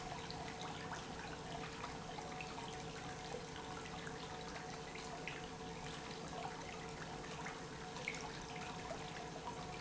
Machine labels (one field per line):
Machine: pump